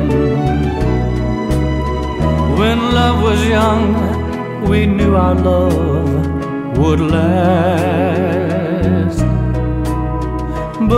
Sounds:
music, tender music

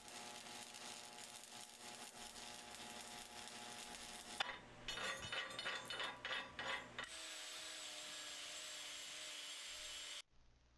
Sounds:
arc welding

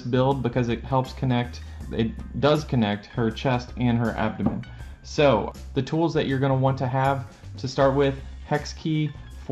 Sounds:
speech, music

